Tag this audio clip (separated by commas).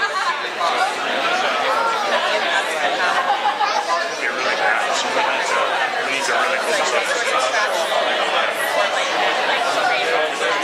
Speech